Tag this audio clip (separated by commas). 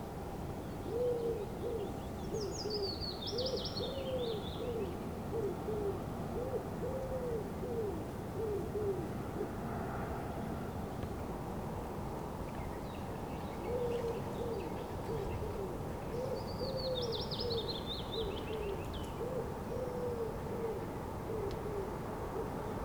Animal, Bird, Wild animals